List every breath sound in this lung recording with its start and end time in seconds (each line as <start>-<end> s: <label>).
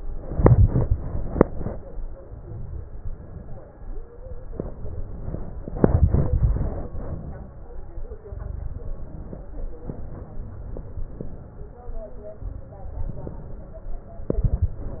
2.18-2.98 s: inhalation
2.98-3.74 s: exhalation
4.60-5.38 s: inhalation
5.70-6.92 s: exhalation
5.70-6.92 s: crackles
6.93-8.19 s: inhalation
8.25-8.89 s: crackles
8.25-9.44 s: exhalation
12.92-13.83 s: inhalation
14.27-15.00 s: exhalation
14.27-15.00 s: crackles